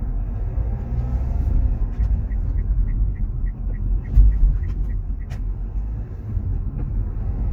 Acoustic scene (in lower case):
car